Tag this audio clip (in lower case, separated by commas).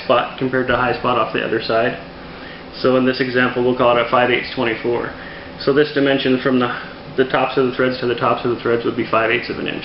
speech